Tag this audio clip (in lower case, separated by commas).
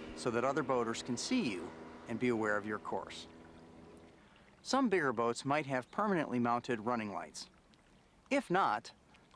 vehicle, motorboat, water vehicle, speech